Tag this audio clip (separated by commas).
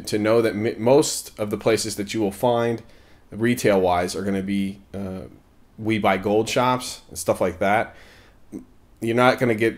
Speech